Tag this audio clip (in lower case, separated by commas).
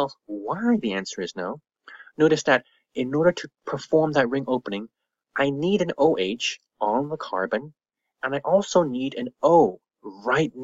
monologue